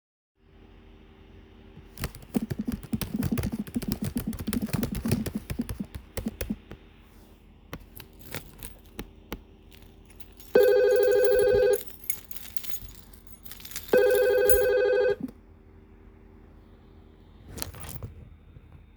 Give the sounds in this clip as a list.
keyboard typing, keys, phone ringing